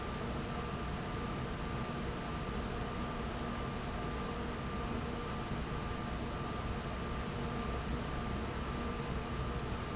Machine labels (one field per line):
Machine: fan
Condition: abnormal